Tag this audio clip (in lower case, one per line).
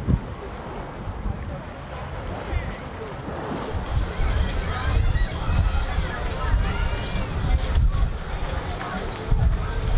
tornado roaring